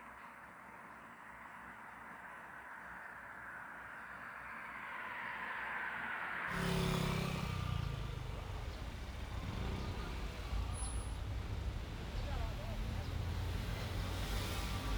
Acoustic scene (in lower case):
street